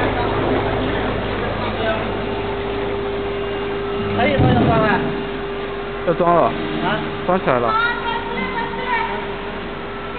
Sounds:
Speech

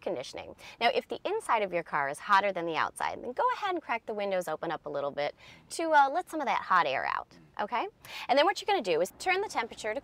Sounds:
Speech

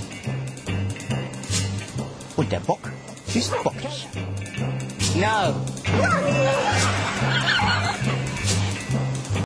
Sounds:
Speech, Music

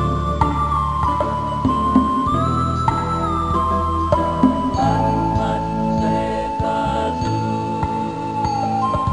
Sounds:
Soundtrack music, Music

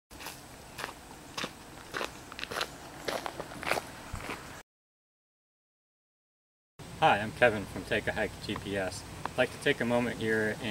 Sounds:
outside, rural or natural, Speech

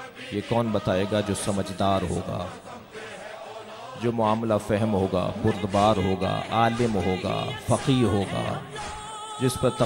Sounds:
Music, Narration, man speaking, Speech

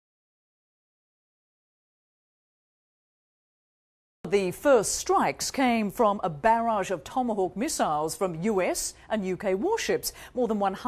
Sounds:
Speech

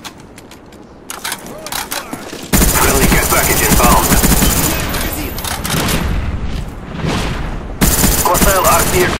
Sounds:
Speech

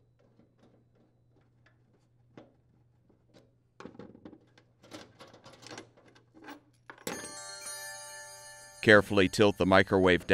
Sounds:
Music, Speech

